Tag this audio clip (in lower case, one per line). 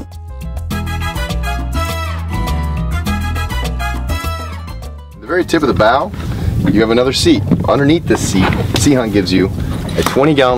music
speech